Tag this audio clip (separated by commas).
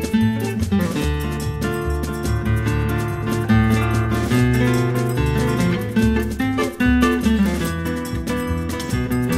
Music, Electric guitar, Musical instrument